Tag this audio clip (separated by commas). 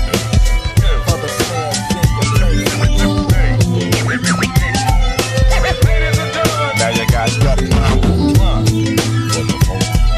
Music, Hip hop music, Rapping, Funk, Singing